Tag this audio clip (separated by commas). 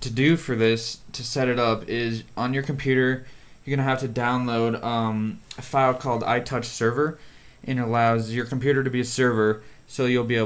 Speech